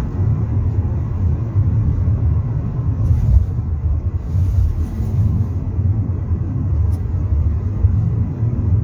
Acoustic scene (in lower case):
car